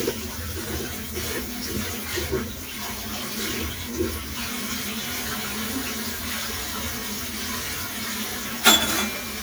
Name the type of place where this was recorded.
kitchen